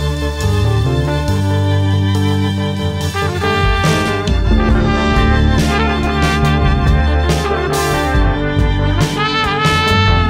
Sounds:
funk, music

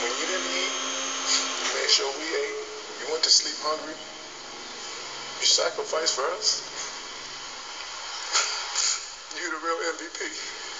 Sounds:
speech, sobbing

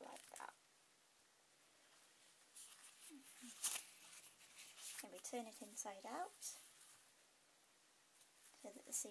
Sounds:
speech, inside a small room

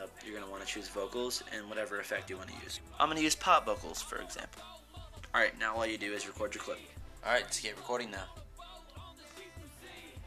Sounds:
speech, music

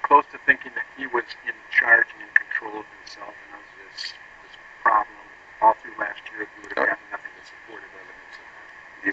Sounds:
speech, male speech

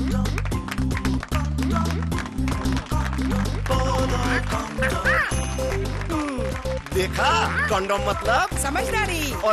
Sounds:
music, speech

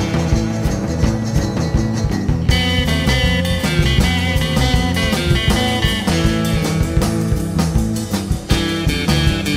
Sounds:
guitar, rock and roll, musical instrument, bass guitar, roll, playing bass guitar, music, plucked string instrument

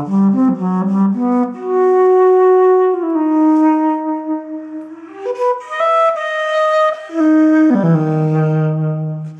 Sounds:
wind instrument, playing flute, flute

